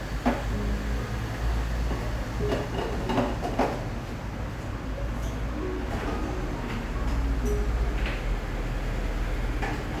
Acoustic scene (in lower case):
cafe